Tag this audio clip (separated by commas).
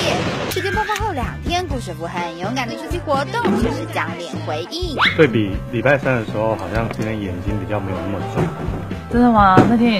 Music, Speech